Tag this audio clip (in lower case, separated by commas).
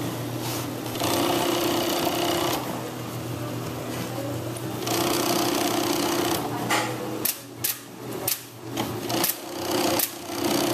sewing machine, speech, using sewing machines